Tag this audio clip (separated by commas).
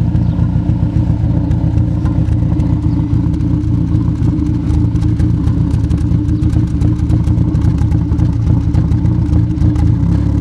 vroom